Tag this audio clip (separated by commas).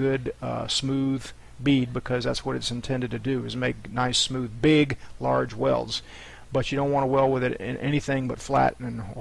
arc welding